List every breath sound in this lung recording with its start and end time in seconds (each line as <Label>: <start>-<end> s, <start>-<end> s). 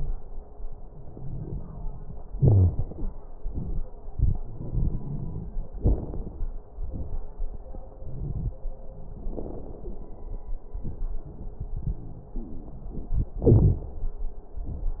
Inhalation: 0.87-2.22 s, 4.09-5.58 s, 8.00-8.57 s, 12.40-13.31 s
Exhalation: 2.31-3.15 s, 5.75-6.54 s, 9.07-10.47 s, 13.39-13.88 s
Wheeze: 2.31-2.74 s
Crackles: 0.87-2.22 s, 4.09-5.58 s, 5.75-6.54 s, 8.00-8.57 s, 9.07-10.47 s, 12.40-13.31 s